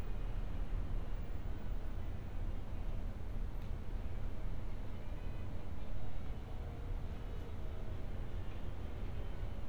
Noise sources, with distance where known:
music from a fixed source, far

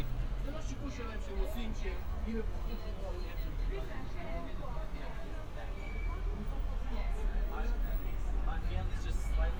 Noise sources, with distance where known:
person or small group talking

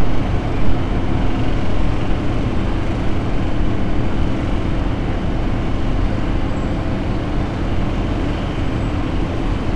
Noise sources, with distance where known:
large-sounding engine, near

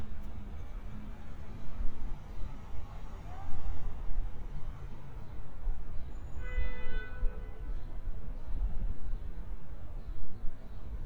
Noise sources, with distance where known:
car horn, near
unidentified human voice, far

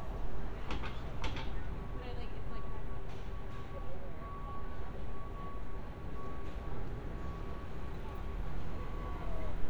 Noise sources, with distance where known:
reverse beeper, far
unidentified human voice

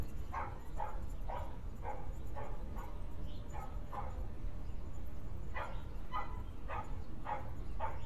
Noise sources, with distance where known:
dog barking or whining

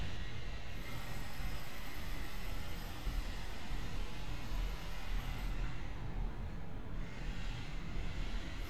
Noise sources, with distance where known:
unidentified powered saw

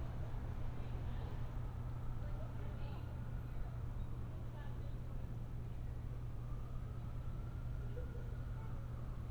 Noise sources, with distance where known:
siren, far
person or small group talking, far

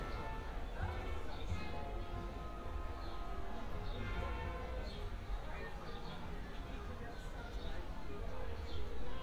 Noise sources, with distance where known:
person or small group talking, far

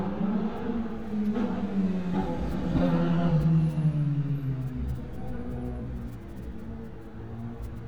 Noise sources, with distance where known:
engine of unclear size

